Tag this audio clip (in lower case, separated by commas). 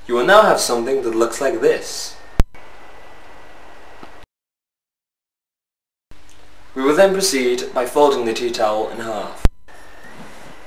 speech